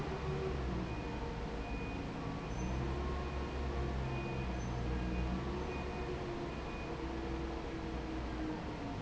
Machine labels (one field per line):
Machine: fan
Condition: normal